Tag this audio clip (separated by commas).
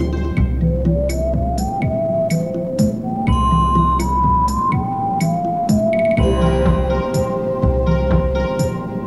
Music, Video game music